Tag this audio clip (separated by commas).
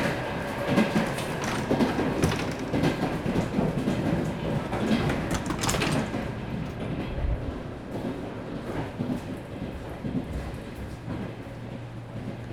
Vehicle, Train, Rail transport